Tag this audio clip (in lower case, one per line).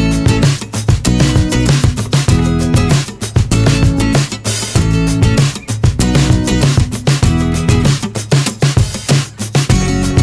music